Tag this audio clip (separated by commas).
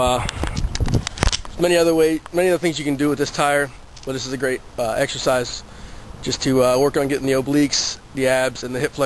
Speech